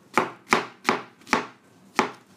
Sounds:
home sounds

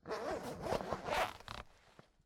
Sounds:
home sounds, Zipper (clothing)

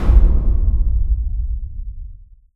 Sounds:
Boom, Explosion

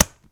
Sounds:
Tap

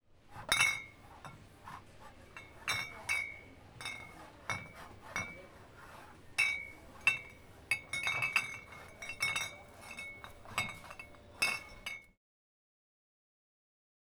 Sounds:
Chatter, Glass, Chink, Human group actions

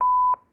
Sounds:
Alarm, Telephone

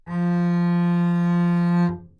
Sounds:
Musical instrument, Music, Bowed string instrument

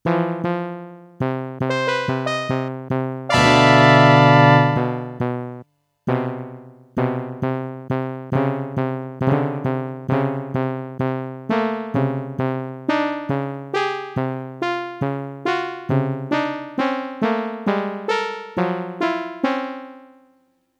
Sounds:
Musical instrument, Keyboard (musical), Music

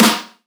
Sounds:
Snare drum, Musical instrument, Percussion, Music, Drum

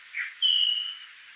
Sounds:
Bird, Wild animals, Animal

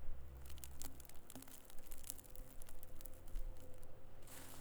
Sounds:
Crackle

